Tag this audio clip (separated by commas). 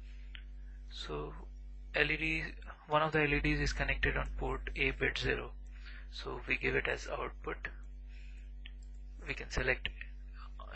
Speech